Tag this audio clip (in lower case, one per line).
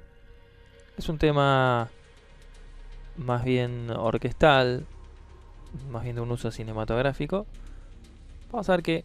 speech
music